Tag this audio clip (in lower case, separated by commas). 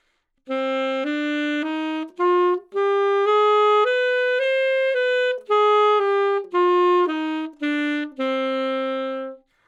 music, woodwind instrument, musical instrument